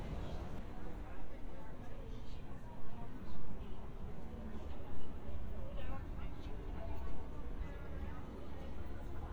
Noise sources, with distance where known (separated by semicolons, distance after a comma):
person or small group talking, far